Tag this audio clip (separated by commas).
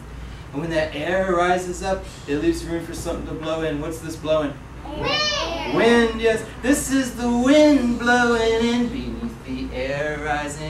Speech